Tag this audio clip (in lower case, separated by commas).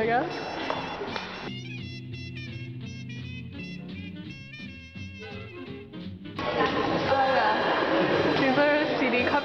inside a public space, music, speech